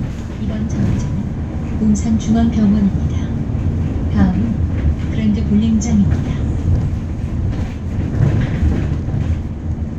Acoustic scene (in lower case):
bus